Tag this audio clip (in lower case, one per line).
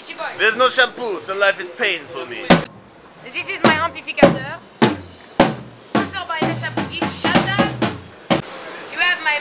music
speech